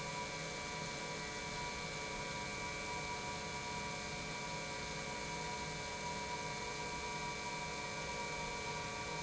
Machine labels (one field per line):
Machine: pump